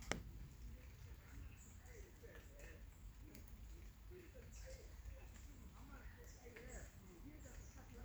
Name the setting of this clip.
park